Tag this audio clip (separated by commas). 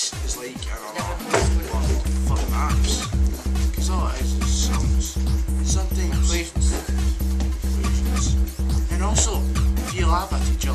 Music, Speech